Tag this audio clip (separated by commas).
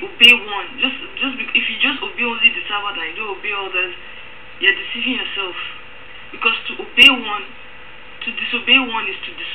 Speech